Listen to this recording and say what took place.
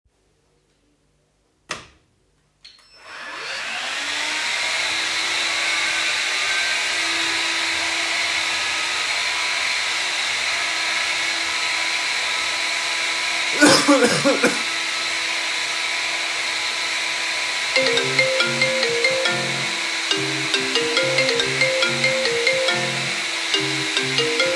I switched on the light and then switched on the vacuum and then I coughed. Finally I got a call while vacuuming